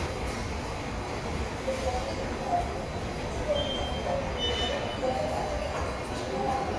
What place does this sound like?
subway station